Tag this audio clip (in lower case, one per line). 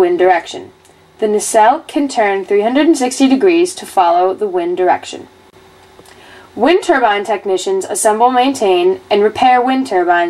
speech